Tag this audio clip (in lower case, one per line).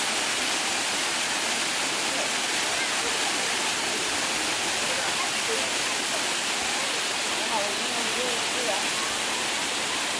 waterfall burbling